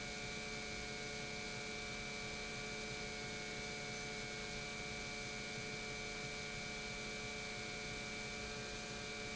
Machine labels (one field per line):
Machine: pump